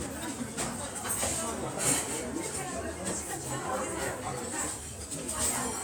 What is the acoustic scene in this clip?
restaurant